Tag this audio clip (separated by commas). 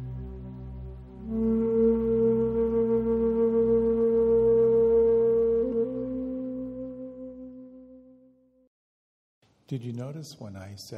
Music, Speech, man speaking